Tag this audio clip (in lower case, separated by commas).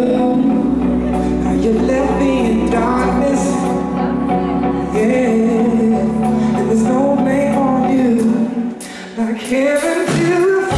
pop music, music